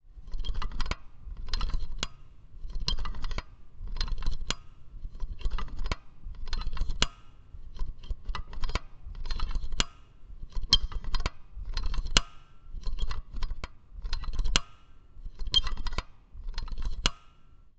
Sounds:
Mechanisms

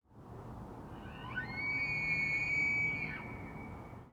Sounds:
Animal

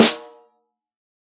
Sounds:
Percussion, Music, Snare drum, Musical instrument, Drum

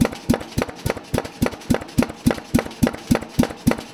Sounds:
Tools

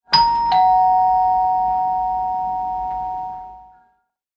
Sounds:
Doorbell, home sounds, Door, Alarm

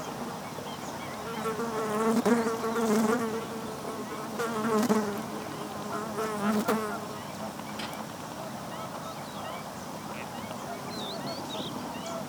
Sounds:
Buzz, Wild animals, Animal, Insect

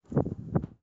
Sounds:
Wind

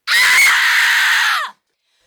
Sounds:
Screaming, Human voice

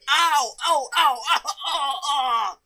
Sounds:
Yell, Human voice, Shout

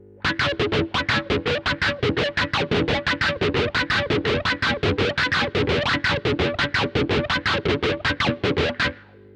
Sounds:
Music, Musical instrument, Electric guitar, Plucked string instrument, Guitar

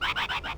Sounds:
Bird, Wild animals, Animal

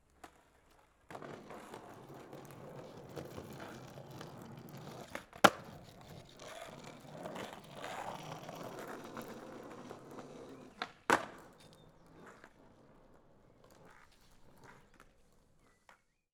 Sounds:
Vehicle, Skateboard

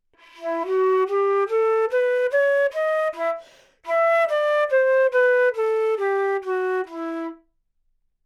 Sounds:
woodwind instrument, Music, Musical instrument

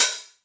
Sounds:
Cymbal, Percussion, Hi-hat, Musical instrument, Music

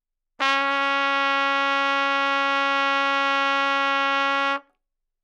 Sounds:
Brass instrument, Musical instrument, Trumpet, Music

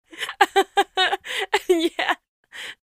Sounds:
Laughter, Chuckle, Giggle, Human voice

